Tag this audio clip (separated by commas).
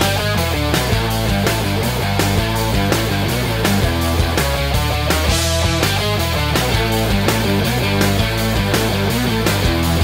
Music